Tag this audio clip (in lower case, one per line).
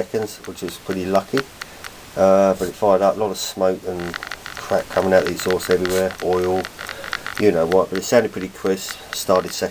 speech